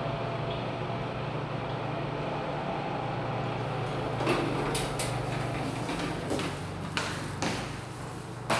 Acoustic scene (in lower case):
elevator